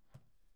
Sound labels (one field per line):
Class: cupboard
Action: opening